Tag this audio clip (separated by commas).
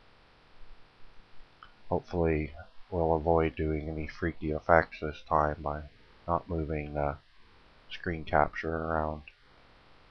Speech